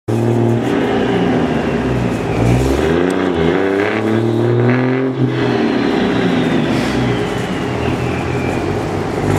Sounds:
Vehicle, Truck

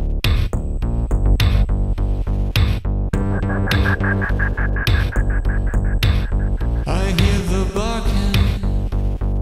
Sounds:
Music

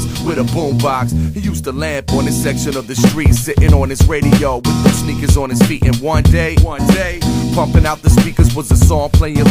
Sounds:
Music

